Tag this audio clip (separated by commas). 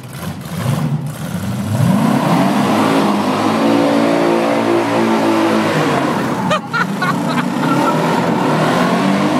Car, Medium engine (mid frequency), Vehicle